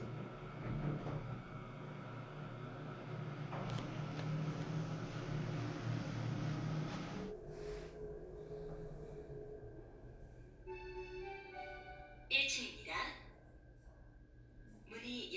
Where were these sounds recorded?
in an elevator